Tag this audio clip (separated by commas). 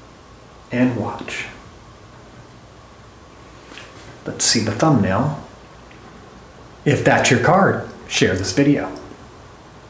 Speech